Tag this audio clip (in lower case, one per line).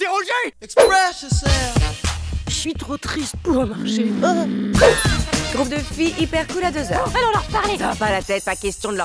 speech
music